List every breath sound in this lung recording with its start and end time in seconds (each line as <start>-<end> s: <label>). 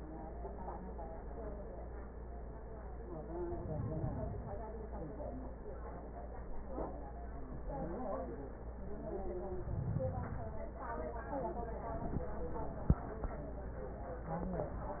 3.38-4.64 s: inhalation
9.45-10.71 s: inhalation